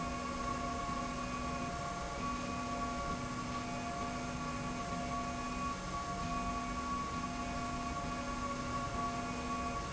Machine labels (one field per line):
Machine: slide rail